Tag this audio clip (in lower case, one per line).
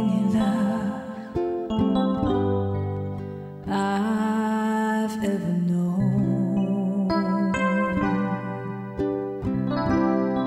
wedding music
music